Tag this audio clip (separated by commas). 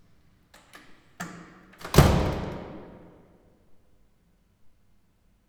home sounds, Door, Slam